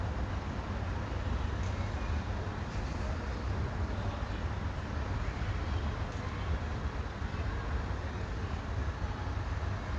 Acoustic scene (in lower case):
residential area